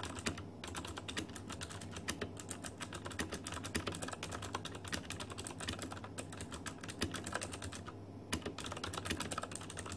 A person is typing at medium speed on a keyboard